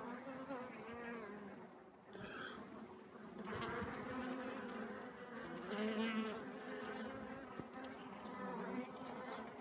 Bees are buzzing